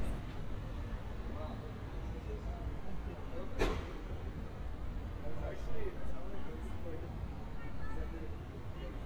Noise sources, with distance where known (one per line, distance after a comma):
person or small group talking